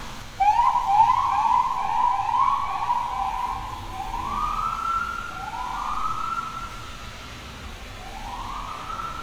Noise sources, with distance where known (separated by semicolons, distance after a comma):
siren, near